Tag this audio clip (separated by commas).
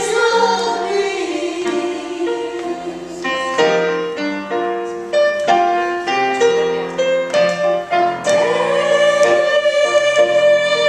Music, Choir